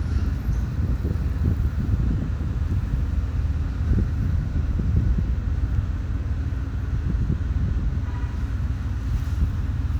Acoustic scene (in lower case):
residential area